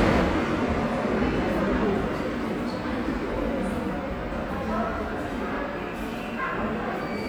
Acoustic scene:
subway station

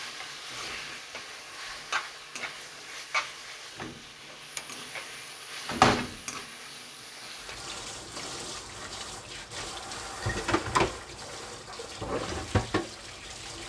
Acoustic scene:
kitchen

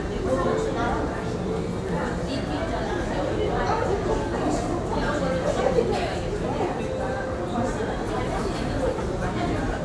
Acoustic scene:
crowded indoor space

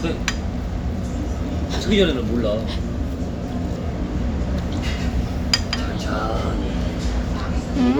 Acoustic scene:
restaurant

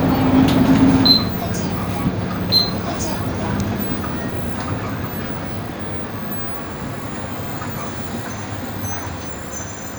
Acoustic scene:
bus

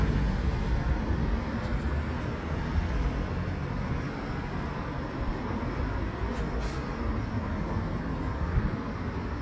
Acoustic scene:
street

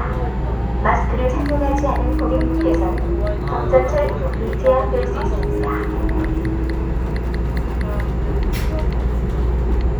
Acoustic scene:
subway train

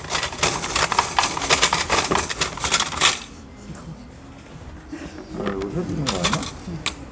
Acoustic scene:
restaurant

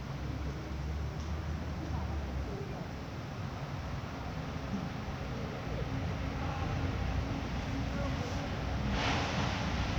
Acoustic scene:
residential area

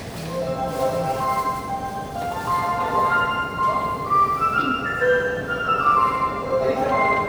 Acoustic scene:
subway station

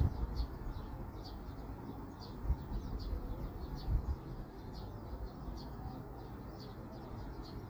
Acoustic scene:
park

